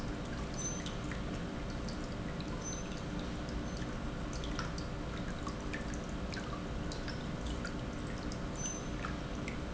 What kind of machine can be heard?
pump